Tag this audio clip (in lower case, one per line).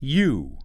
male speech
human voice
speech